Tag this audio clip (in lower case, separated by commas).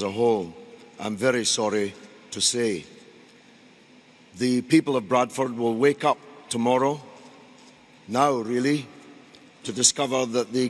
speech, man speaking, monologue